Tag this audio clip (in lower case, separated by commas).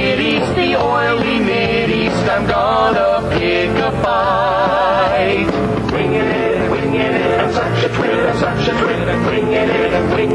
music